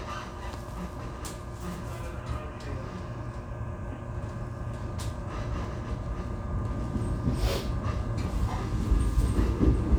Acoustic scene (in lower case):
subway train